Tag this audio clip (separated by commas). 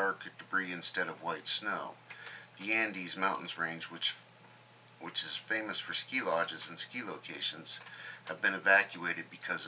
Speech